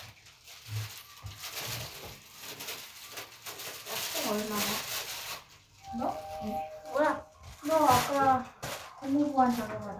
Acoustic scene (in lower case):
elevator